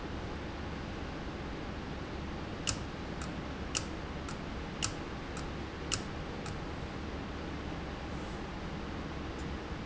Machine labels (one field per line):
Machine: valve